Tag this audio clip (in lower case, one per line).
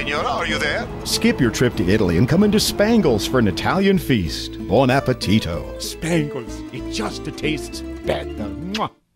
music
speech